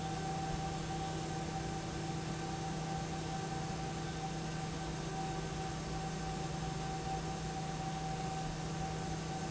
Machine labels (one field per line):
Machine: pump